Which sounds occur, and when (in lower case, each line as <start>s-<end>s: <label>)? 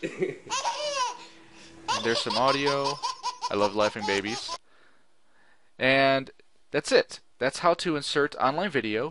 0.0s-0.4s: laughter
0.0s-0.8s: background noise
0.4s-1.1s: baby laughter
0.8s-2.9s: mechanisms
1.1s-1.4s: breathing
1.5s-1.8s: breathing
1.8s-4.6s: baby laughter
2.0s-2.9s: man speaking
3.0s-9.1s: background noise
3.5s-4.4s: man speaking
4.6s-5.1s: breathing
5.2s-5.7s: breathing
5.8s-6.3s: man speaking
6.3s-6.4s: human sounds
6.7s-7.2s: man speaking
7.4s-9.1s: man speaking